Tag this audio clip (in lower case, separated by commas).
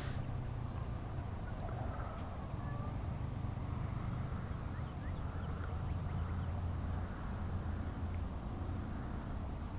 outside, urban or man-made